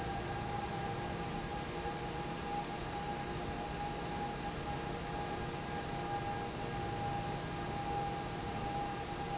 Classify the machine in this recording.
fan